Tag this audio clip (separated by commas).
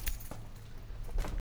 Keys jangling, Domestic sounds